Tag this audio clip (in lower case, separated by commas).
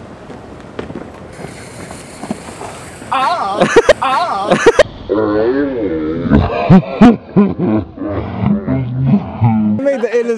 speech